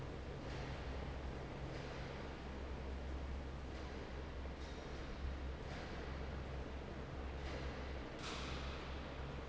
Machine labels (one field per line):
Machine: fan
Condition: normal